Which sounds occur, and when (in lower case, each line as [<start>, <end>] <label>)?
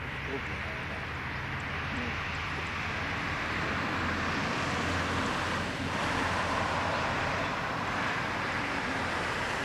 [0.00, 9.64] aircraft
[0.24, 0.92] male speech
[1.66, 2.11] male speech